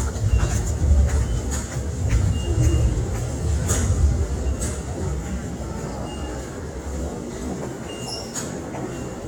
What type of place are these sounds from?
subway station